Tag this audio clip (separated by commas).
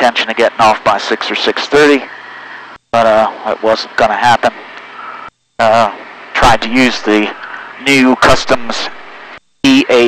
Speech